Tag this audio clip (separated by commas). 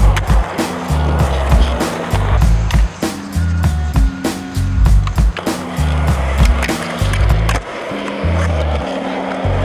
Skateboard, Music